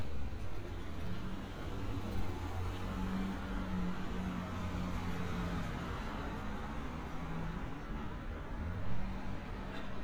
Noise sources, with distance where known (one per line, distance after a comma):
medium-sounding engine